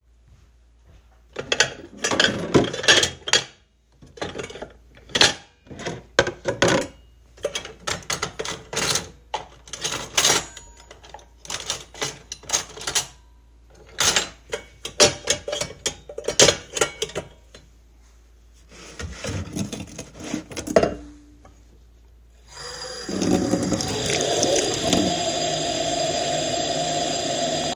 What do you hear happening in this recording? I washed the dishes, spoons and forks, then put them away on the shelf and finally, I flushed water into the sink